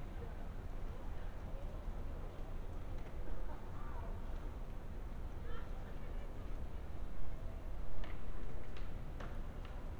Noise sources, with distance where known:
unidentified human voice, far

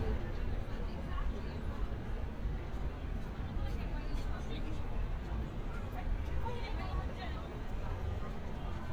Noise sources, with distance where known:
unidentified human voice

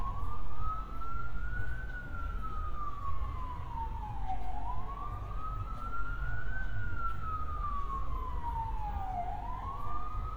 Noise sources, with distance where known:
siren, far

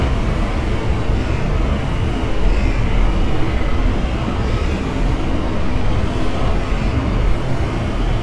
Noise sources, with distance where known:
large-sounding engine, near

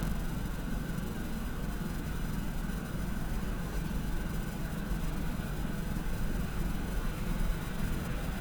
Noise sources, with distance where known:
large-sounding engine

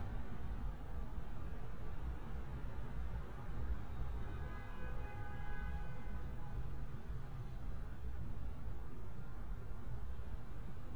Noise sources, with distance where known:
car horn, far

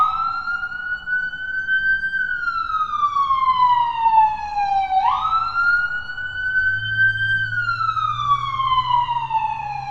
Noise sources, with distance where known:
siren, near

